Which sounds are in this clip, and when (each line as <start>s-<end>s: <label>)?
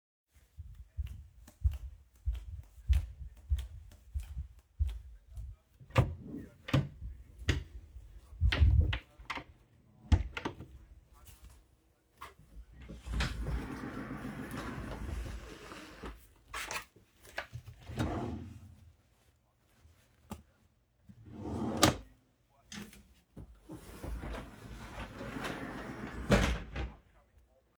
0.9s-5.8s: footsteps
5.9s-7.3s: door
7.5s-7.7s: light switch
8.4s-10.6s: door
11.2s-13.0s: footsteps
13.1s-16.2s: wardrobe or drawer
17.8s-18.6s: wardrobe or drawer
21.3s-22.2s: wardrobe or drawer
23.9s-27.0s: wardrobe or drawer